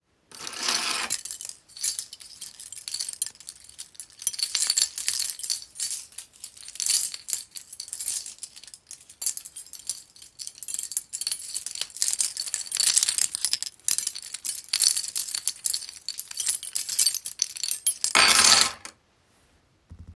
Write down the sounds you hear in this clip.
keys